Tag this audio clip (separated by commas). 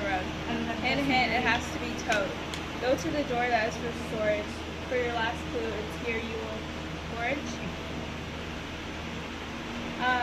Speech